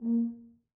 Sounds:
music, musical instrument, brass instrument

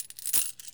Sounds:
coin (dropping), home sounds

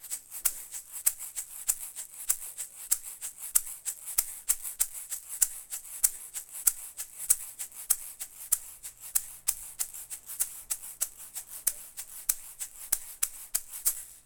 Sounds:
percussion, rattle (instrument), musical instrument, music

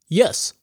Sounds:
speech, human voice, man speaking

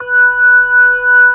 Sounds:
music, organ, keyboard (musical), musical instrument

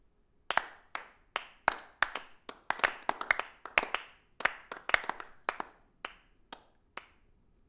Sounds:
human group actions, applause

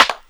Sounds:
hands, clapping

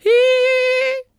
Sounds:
singing, female singing, human voice

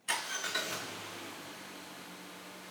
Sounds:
vehicle, car, motor vehicle (road)

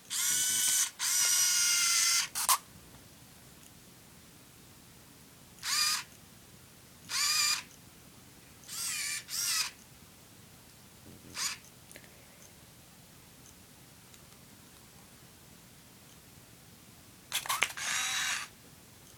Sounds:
mechanisms, camera

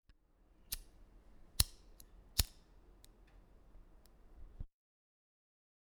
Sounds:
fire

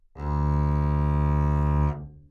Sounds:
music, musical instrument, bowed string instrument

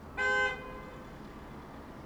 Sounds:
motor vehicle (road), car horn, car, vehicle, alarm, traffic noise

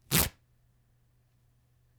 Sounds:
tearing

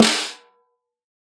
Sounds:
snare drum, music, musical instrument, drum, percussion

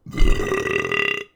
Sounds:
eructation

